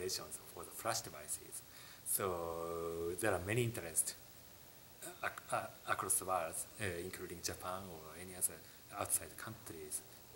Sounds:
inside a small room
speech

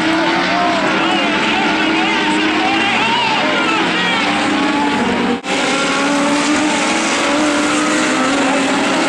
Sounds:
vehicle
motor vehicle (road)
car
speech

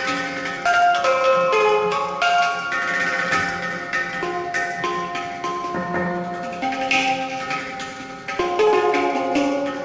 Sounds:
inside a large room or hall
drum
music
percussion
musical instrument

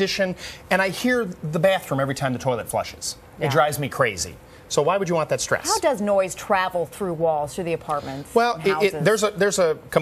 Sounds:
speech

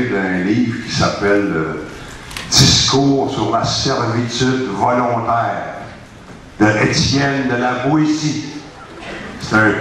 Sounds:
man speaking
monologue
speech

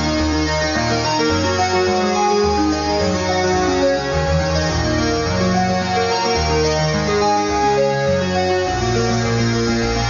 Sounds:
sampler
music

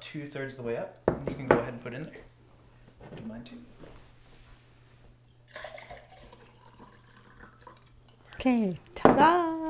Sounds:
drip
inside a small room
speech

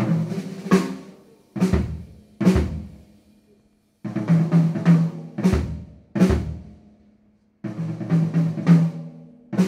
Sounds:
music
drum roll
musical instrument
drum kit

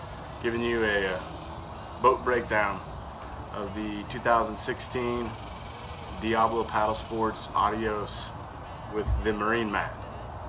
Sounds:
music
speech

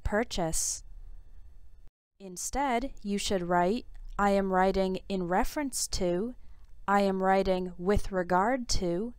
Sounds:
speech

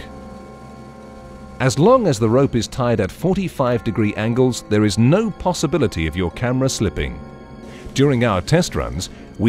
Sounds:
speech

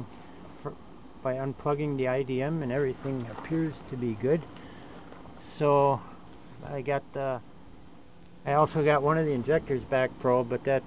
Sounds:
speech

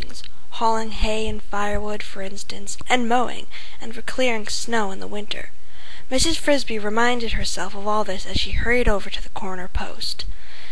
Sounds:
speech

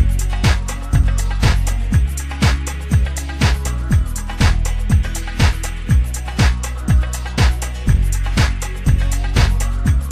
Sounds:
music

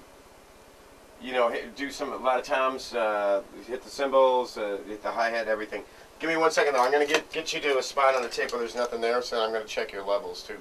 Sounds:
speech

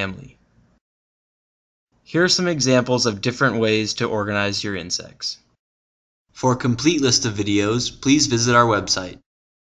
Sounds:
speech

